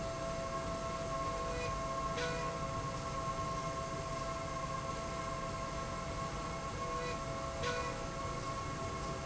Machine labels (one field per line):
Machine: slide rail